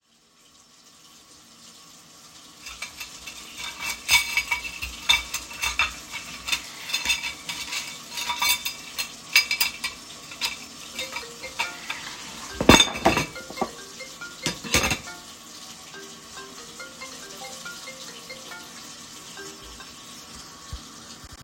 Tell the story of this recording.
With water running in the background, I fiddled around with some cutlery. Then my phone starts ringing, at which point I stop with the cutlery to look at my phone.